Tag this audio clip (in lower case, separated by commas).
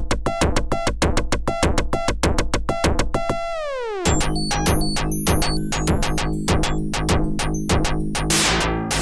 music, soundtrack music, theme music